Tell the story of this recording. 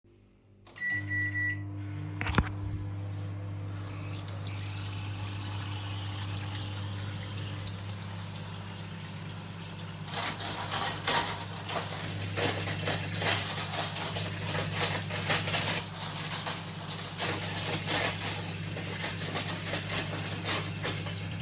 I started the microwave and while it was running I moved to the sink and turned on the tap. I then picked up some cutlery and dishes creating overlapping sounds from all three sources. I retrieved the food when the microwave finished.